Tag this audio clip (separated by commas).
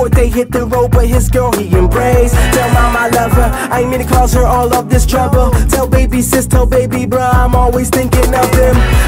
Music, Echo